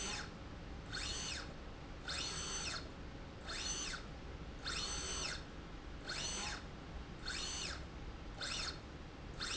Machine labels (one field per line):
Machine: slide rail